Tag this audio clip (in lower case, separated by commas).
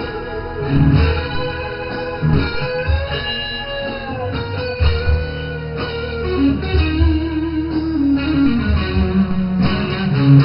electric guitar, musical instrument, music, guitar